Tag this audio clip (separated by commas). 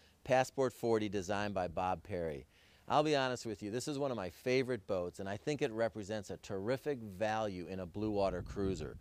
Speech